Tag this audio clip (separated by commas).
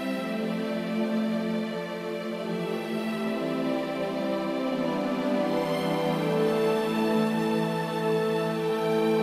Music, Happy music